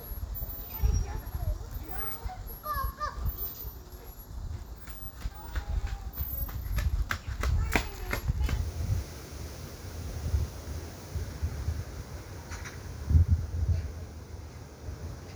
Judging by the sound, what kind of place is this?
park